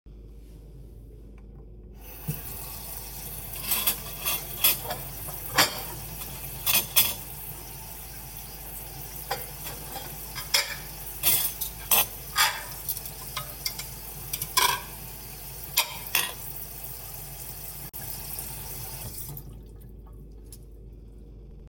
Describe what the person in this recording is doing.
I handled dishes and cutlery on the kitchen counter creating clattering sounds.